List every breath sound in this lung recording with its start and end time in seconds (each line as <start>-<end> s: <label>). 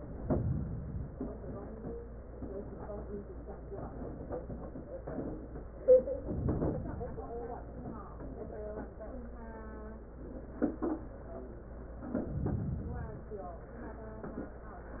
0.00-1.10 s: inhalation
1.04-2.14 s: exhalation
6.14-7.16 s: inhalation
7.14-8.16 s: exhalation
12.25-13.26 s: inhalation